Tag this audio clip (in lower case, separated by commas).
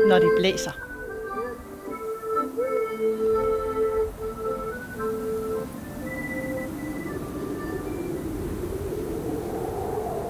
speech, music, wind noise (microphone)